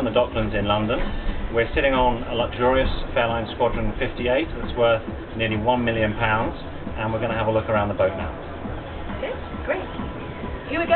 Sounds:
Music, Speech

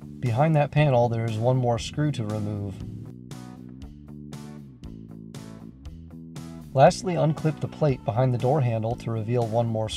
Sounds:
Music, Speech

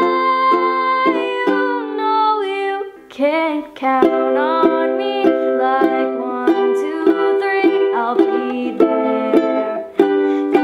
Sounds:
playing ukulele

